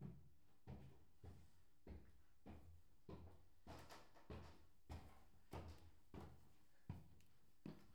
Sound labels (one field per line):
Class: footsteps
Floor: wooden floor